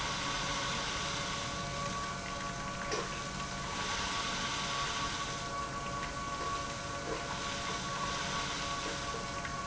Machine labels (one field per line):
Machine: pump